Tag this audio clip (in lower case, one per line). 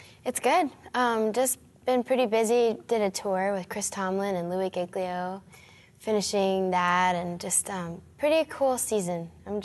speech